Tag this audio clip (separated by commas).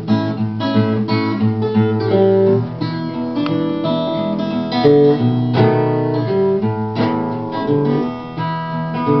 Strum, Music, Musical instrument, Acoustic guitar, Guitar, Blues, Plucked string instrument